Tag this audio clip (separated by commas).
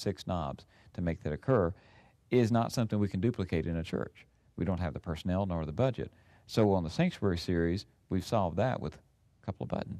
Speech